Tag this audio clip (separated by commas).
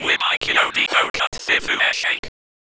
Human voice, Whispering